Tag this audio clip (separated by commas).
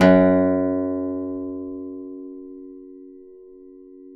Guitar, Musical instrument, Music, Acoustic guitar, Plucked string instrument